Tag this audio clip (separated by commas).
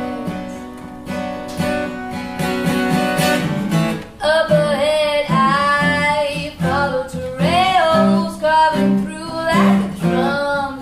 Music